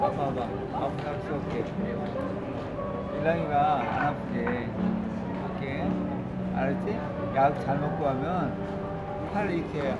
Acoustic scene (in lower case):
crowded indoor space